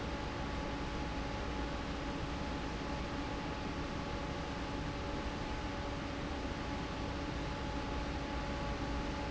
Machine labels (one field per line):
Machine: fan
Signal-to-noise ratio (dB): -6 dB